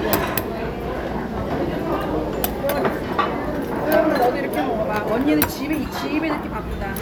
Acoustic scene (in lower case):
restaurant